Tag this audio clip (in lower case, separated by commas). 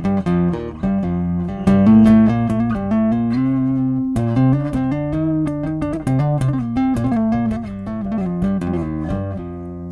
tapping (guitar technique), music, musical instrument, plucked string instrument, bass guitar